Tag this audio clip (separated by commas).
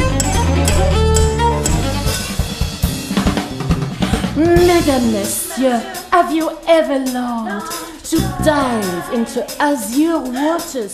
Music, Singing, Drum kit, Drum, Rimshot, Bass drum, Cello